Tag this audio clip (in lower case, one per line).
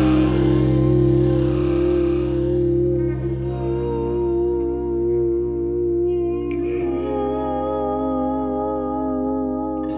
music